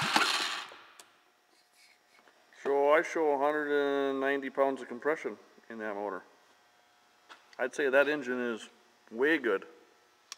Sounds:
speech

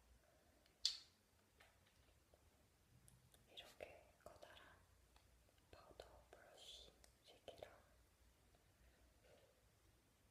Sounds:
speech

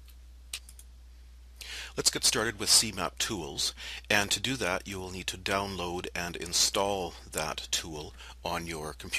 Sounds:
speech

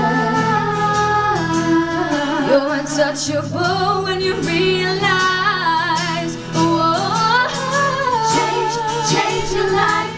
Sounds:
female singing
inside a large room or hall
music

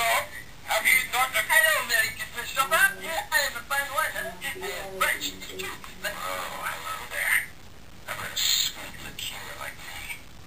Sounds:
speech

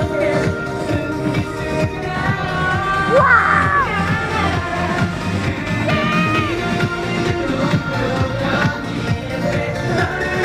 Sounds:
music

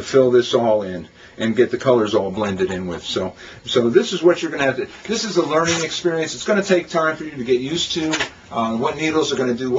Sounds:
speech

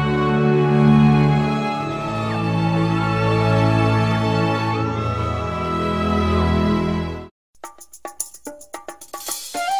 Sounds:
music

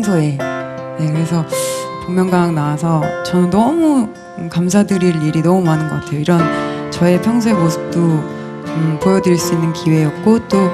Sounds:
music
music of asia

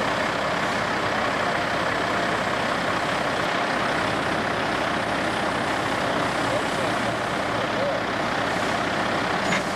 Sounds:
vehicle
truck
speech
idling

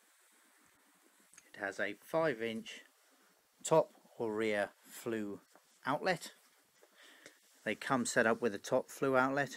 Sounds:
speech

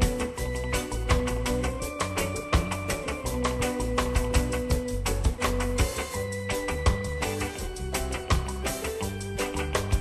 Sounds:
music

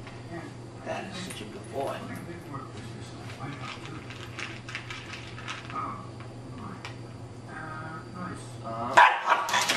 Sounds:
animal
domestic animals
speech
bow-wow
dog

